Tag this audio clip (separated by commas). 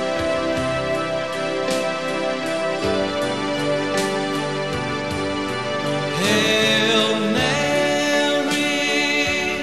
Music